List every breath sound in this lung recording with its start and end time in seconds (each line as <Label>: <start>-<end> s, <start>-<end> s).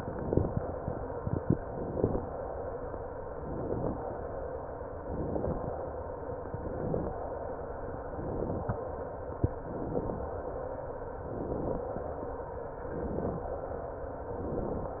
Inhalation: 1.63-2.41 s, 3.38-4.16 s, 4.97-5.75 s, 6.45-7.23 s, 8.03-8.80 s, 9.51-10.29 s, 11.18-11.96 s, 12.73-13.51 s, 14.23-15.00 s